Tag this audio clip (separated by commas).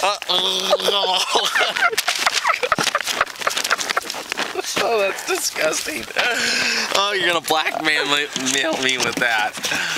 Speech